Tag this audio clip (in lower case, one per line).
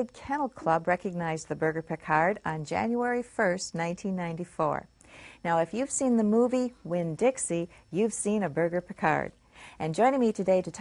speech